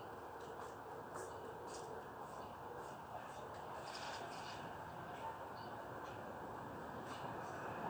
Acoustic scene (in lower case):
residential area